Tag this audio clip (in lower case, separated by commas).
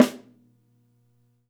music, musical instrument, snare drum, drum, percussion